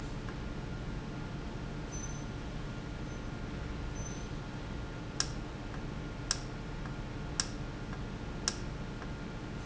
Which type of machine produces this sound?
valve